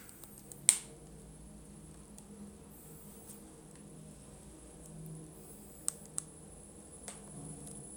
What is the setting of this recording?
elevator